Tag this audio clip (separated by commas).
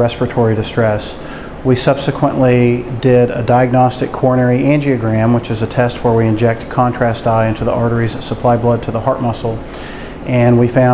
Speech